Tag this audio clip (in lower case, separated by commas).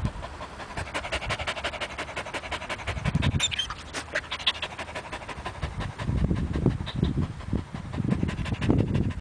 dog, animal, pets